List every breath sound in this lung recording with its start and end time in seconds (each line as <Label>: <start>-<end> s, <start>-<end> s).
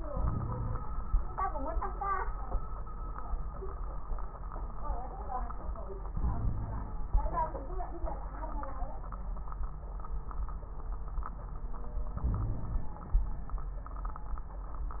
Inhalation: 0.00-0.80 s, 6.09-7.01 s, 12.14-13.17 s
Wheeze: 0.13-0.80 s, 6.09-7.01 s, 12.23-12.92 s